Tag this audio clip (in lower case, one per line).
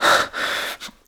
breathing
respiratory sounds